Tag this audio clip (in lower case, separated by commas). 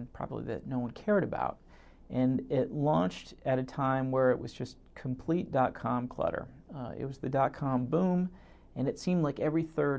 speech